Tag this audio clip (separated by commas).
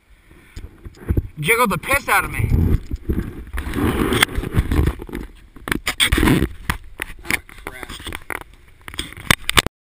Speech